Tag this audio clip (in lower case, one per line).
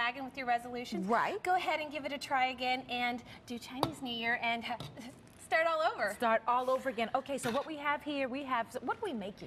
speech